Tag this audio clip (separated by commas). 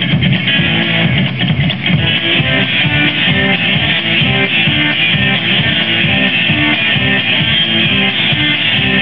Music, Blues